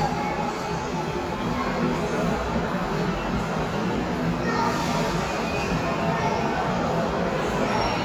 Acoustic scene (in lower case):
subway station